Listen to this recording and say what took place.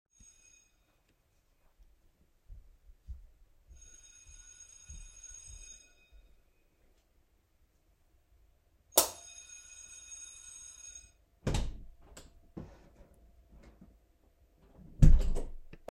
The bell rang a few times. I turned on the light switch and opened the door.